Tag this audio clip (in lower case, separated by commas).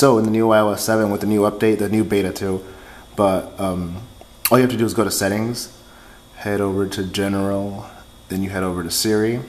speech, male speech